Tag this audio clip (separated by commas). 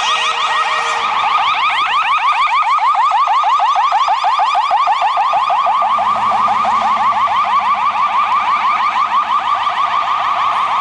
Ambulance (siren), ambulance siren